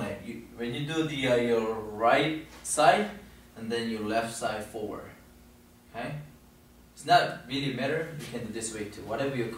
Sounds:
speech

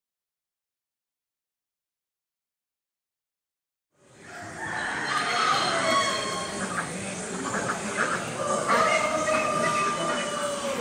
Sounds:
pheasant crowing

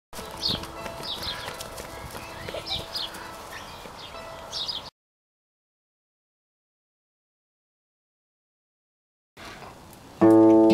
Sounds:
livestock
music

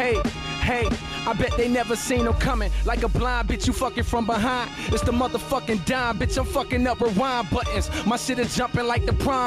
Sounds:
music

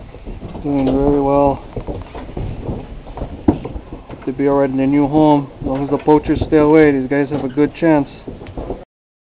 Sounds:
speech

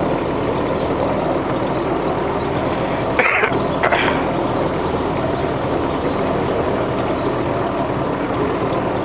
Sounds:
vehicle
sailboat

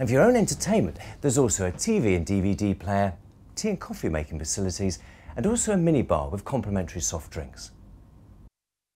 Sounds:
speech

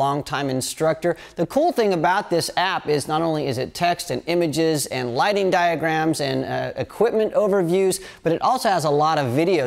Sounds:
speech

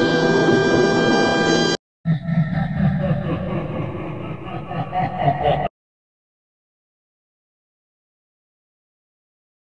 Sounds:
music

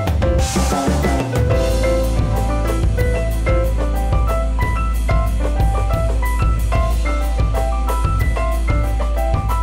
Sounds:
music

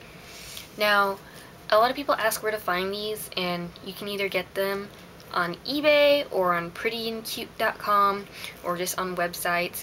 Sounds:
speech

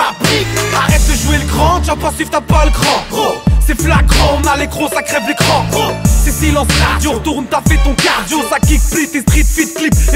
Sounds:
music

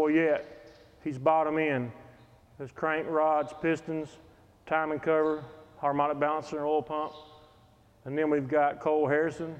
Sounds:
speech

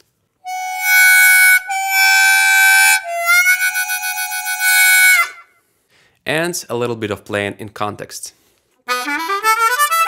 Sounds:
playing harmonica

